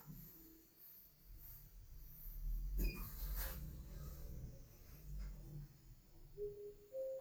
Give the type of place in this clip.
elevator